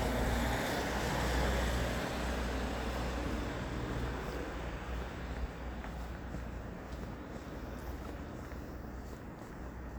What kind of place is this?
street